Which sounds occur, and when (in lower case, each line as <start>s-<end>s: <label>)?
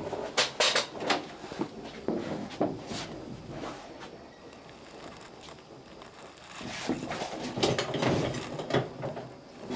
0.0s-0.3s: surface contact
0.0s-0.4s: generic impact sounds
0.0s-9.7s: background noise
0.6s-0.9s: generic impact sounds
1.0s-1.2s: generic impact sounds
1.2s-1.6s: surface contact
1.8s-1.9s: generic impact sounds
2.0s-2.5s: surface contact
2.0s-2.2s: generic impact sounds
2.4s-2.7s: generic impact sounds
2.7s-3.2s: surface contact
3.4s-4.1s: surface contact
4.4s-5.2s: generic impact sounds
5.3s-5.6s: generic impact sounds
5.8s-6.4s: generic impact sounds
6.4s-6.9s: surface contact
7.0s-7.2s: generic impact sounds
7.5s-8.1s: generic impact sounds
8.4s-8.8s: generic impact sounds
8.9s-9.2s: generic impact sounds